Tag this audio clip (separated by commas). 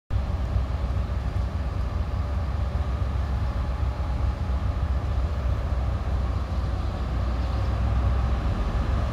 Vehicle, Train, Rail transport, Railroad car